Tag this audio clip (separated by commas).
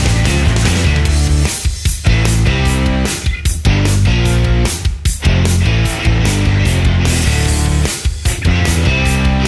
Music